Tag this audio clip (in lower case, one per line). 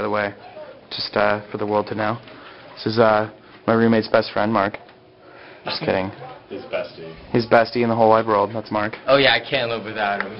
speech